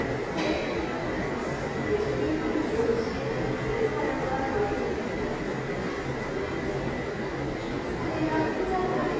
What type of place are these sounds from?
subway station